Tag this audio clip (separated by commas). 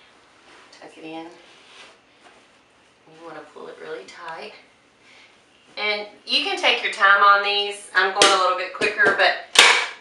inside a small room, Speech